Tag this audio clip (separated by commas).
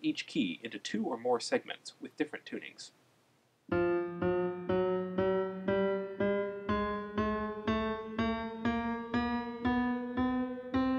Speech, Music